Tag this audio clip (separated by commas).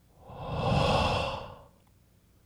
Breathing, Respiratory sounds